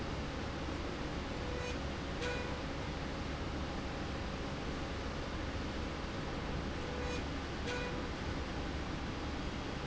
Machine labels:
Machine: slide rail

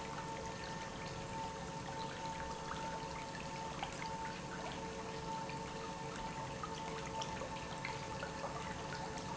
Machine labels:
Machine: pump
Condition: normal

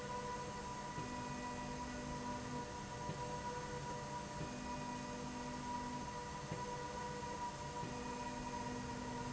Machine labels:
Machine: slide rail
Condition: normal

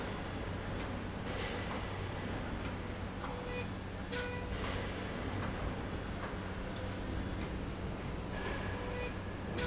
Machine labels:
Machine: slide rail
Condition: normal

